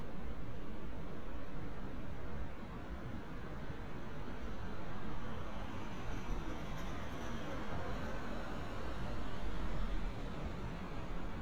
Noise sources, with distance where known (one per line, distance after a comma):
background noise